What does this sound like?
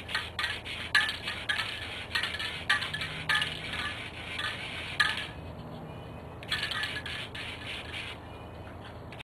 Metal rattling and spraying